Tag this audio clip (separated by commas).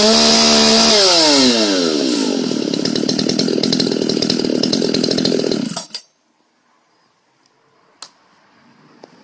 chainsawing trees, Chainsaw